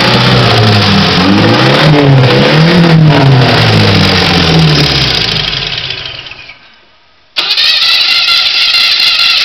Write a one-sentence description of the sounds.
Motor vehicle revving engine